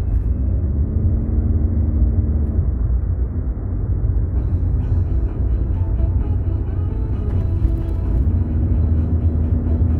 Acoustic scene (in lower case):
car